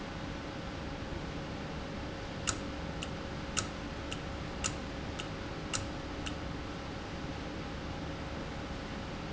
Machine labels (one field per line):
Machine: valve